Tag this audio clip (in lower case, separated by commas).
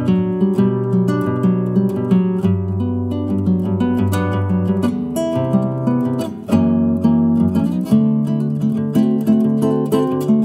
guitar, acoustic guitar, playing acoustic guitar, plucked string instrument, musical instrument